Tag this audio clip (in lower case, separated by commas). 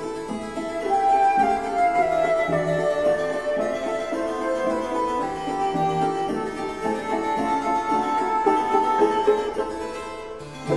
harpsichord, musical instrument, music